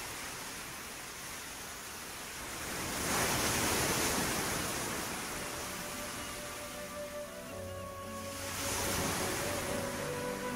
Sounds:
Ocean, Waves, Wind

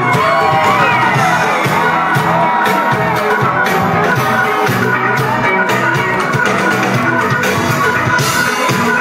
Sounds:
Pop music, Ska, Music

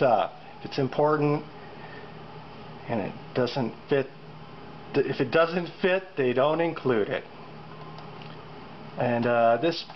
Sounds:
Speech

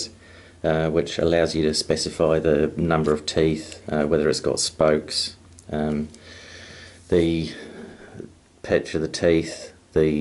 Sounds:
Speech

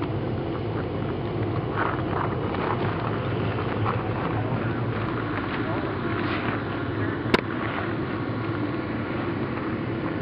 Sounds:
Speech

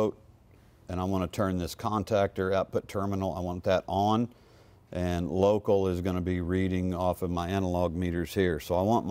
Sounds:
arc welding

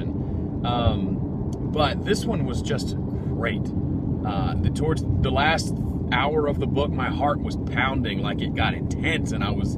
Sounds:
Speech

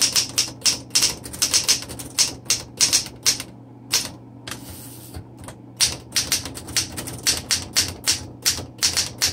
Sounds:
typing on typewriter

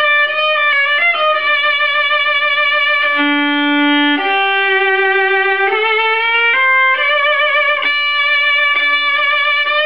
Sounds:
Violin, Musical instrument, Music

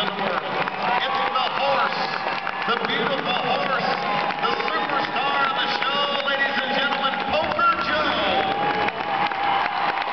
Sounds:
Speech

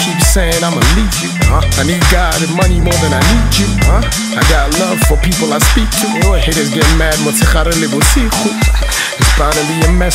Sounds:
Music

